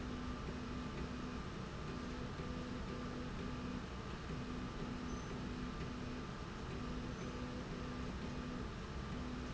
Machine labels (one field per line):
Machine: slide rail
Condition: normal